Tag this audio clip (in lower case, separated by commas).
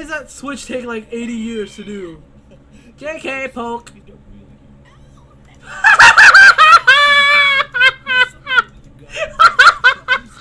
speech